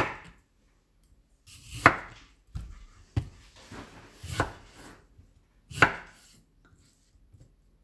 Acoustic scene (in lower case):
kitchen